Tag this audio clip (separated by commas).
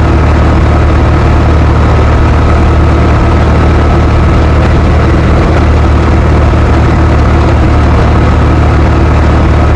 Heavy engine (low frequency), Vehicle